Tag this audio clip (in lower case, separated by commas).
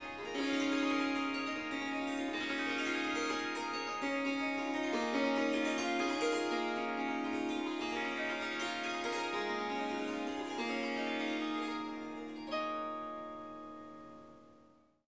harp, music, musical instrument